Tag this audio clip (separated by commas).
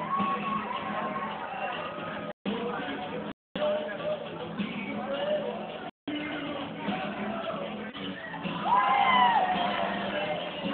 Music, inside a large room or hall, Speech